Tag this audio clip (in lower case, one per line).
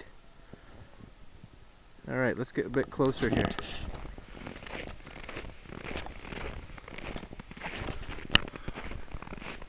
speech